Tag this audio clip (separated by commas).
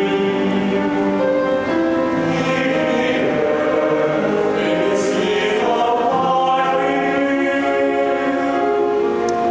Music, Singing, Choir